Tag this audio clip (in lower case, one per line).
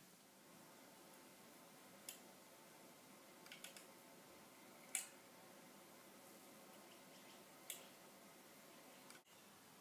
tick-tock